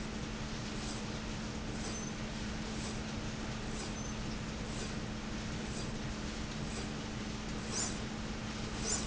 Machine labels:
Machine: slide rail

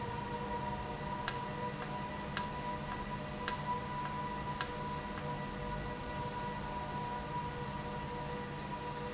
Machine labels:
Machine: valve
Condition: normal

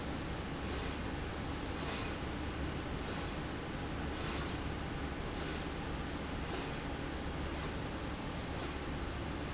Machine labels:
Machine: slide rail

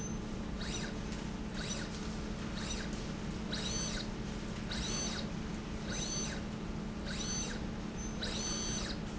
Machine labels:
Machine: slide rail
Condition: abnormal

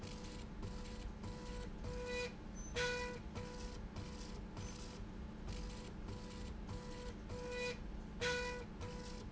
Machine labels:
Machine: slide rail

